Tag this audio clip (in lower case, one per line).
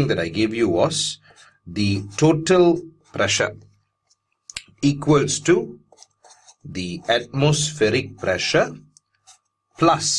speech